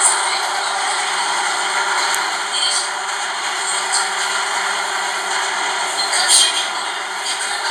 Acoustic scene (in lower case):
subway train